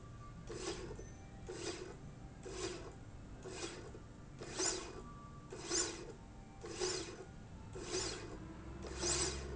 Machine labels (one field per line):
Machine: slide rail